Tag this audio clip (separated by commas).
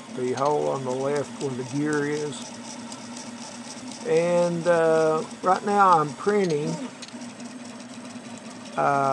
Printer, Speech